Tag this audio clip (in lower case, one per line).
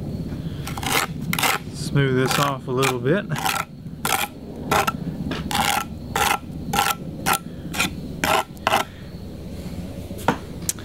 outside, rural or natural
speech